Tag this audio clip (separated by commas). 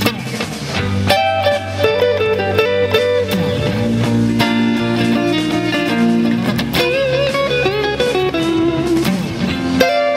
Plucked string instrument, Strum, Electric guitar, Guitar, Musical instrument, Music, playing electric guitar